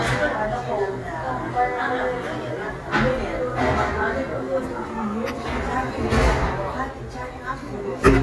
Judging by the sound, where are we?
in a cafe